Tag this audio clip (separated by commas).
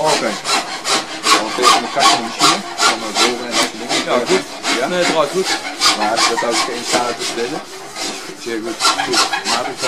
Speech, Male speech